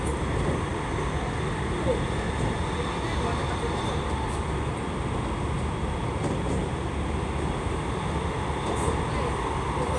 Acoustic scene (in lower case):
subway train